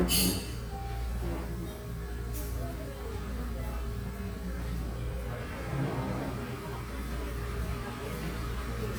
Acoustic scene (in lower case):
cafe